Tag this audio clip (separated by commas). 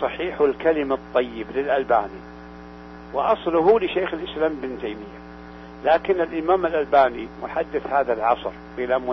Speech